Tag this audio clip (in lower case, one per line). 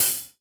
music
percussion
cymbal
hi-hat
musical instrument